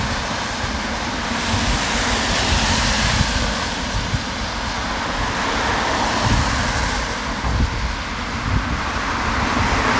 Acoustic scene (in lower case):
street